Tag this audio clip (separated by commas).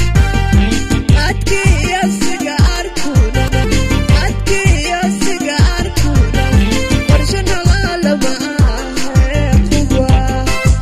Singing, Music